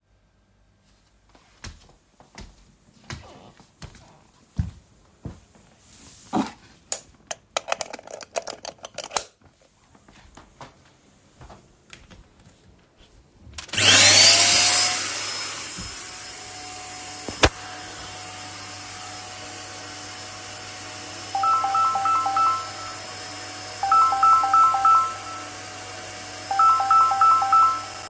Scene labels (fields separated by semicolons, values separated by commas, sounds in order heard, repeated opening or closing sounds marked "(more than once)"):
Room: bedroom; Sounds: footsteps, vacuum cleaner, phone ringing